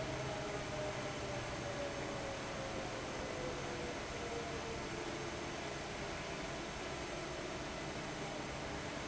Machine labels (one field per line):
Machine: fan